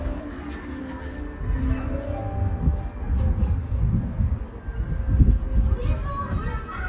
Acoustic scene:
park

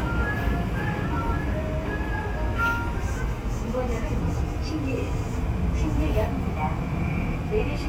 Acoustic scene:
subway train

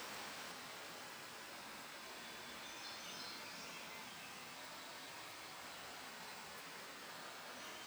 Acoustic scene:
park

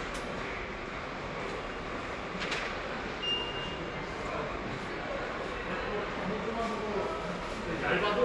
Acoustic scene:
subway station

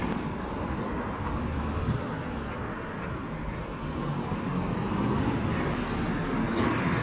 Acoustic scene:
residential area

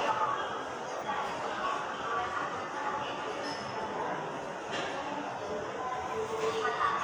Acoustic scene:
subway station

